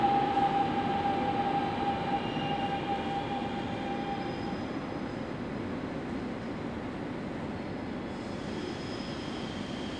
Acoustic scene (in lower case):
subway station